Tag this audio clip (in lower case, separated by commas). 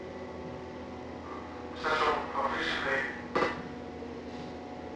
vehicle, train, rail transport